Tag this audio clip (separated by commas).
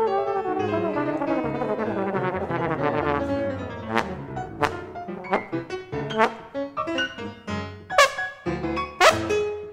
Brass instrument, Music